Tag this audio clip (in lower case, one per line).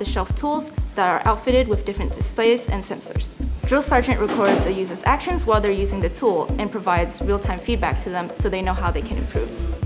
tools
speech
music